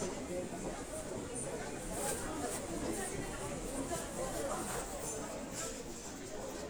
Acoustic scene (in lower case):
crowded indoor space